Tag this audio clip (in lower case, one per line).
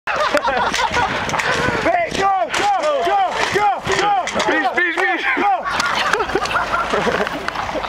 speech